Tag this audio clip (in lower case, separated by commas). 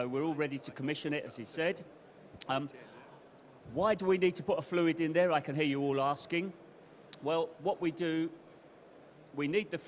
speech